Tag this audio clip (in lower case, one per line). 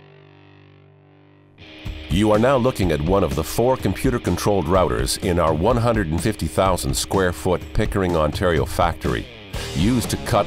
music
speech